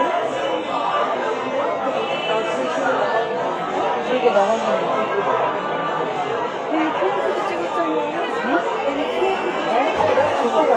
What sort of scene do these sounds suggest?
cafe